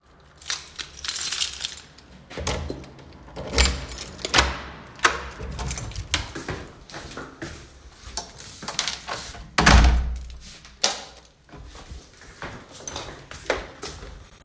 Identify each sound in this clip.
keys, door, footsteps, light switch